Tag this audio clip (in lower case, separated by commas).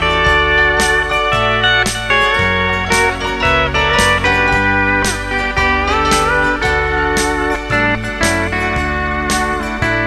music, plucked string instrument, guitar, musical instrument, synthesizer, slide guitar